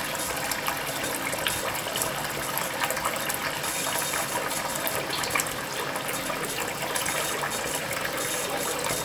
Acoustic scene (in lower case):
restroom